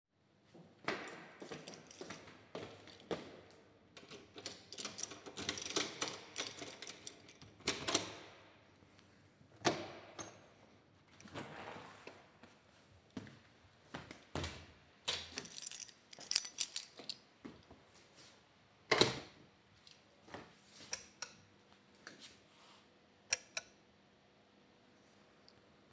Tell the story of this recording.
I approached the door opened it with a key and then turned on the lights.